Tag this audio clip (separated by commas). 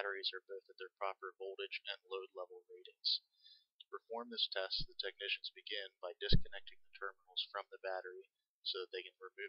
Speech